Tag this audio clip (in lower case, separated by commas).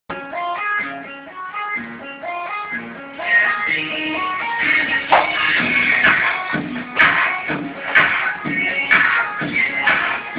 music, inside a small room